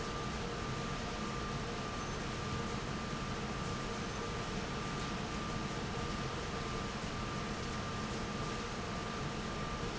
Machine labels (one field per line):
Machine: fan